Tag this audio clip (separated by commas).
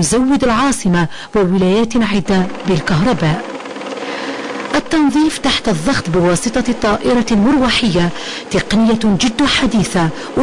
Speech